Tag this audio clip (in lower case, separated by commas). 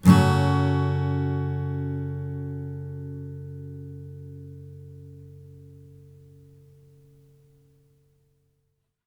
music, acoustic guitar, plucked string instrument, guitar, strum, musical instrument